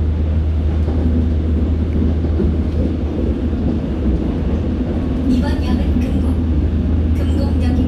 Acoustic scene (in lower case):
subway train